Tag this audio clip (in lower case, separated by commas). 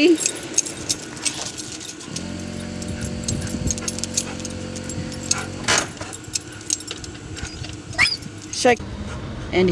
speech, outside, urban or man-made, truck, vehicle